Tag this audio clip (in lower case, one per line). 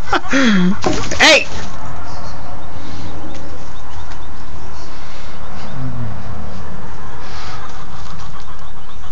animal
crowing
speech
chicken